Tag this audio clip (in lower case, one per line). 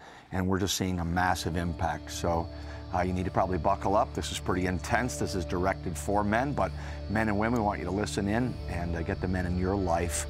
music
speech